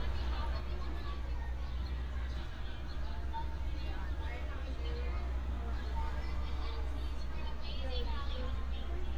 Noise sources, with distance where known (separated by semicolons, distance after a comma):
person or small group talking, near